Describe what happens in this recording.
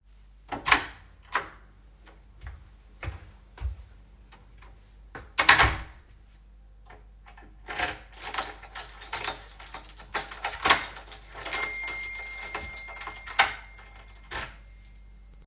I opened the door, walked out of the apartment then closed the door. While locking the door I got a message on WhatsApp.